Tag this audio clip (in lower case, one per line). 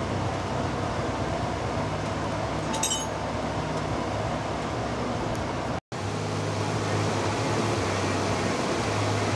outside, rural or natural